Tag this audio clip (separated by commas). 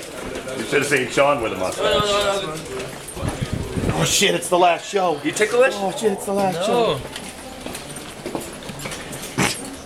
Speech